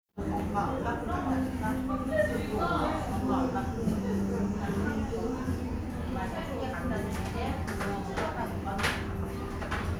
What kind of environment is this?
restaurant